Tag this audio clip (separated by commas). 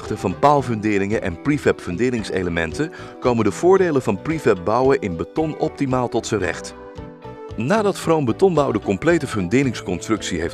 Speech, Music